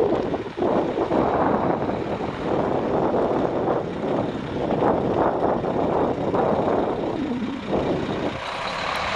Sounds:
outside, urban or man-made, Truck, Vehicle

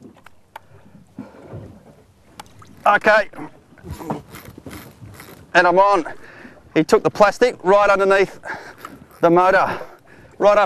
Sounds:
Speech

